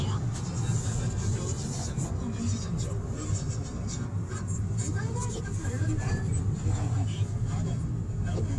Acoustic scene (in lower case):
car